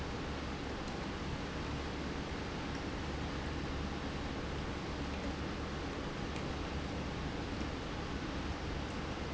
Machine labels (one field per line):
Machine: pump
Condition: normal